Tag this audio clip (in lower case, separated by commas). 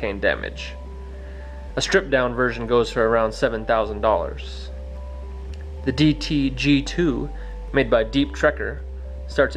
speech, music